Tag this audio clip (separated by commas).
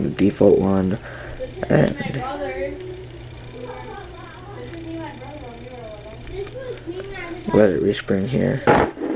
Speech, inside a small room